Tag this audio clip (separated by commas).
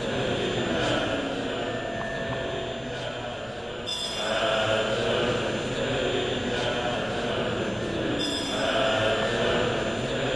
Music